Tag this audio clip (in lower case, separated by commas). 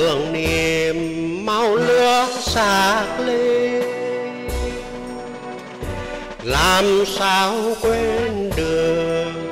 music